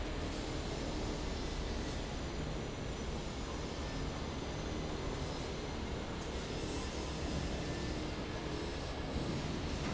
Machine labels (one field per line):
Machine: fan